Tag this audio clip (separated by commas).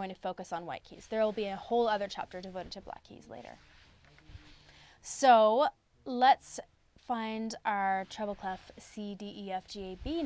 Speech